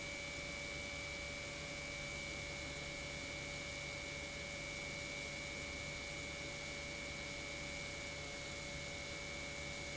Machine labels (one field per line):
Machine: pump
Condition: normal